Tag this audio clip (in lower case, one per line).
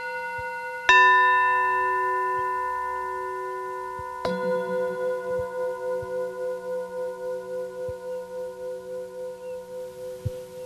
music